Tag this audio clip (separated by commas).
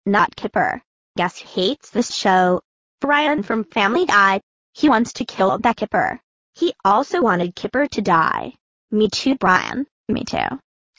Speech